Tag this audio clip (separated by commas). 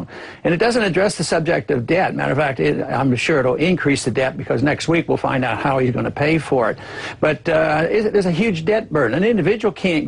Speech